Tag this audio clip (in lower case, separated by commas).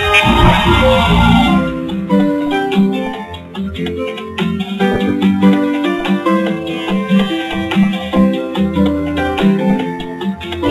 music